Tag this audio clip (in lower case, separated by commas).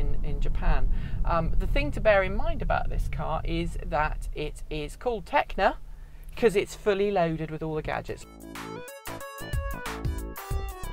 speech, music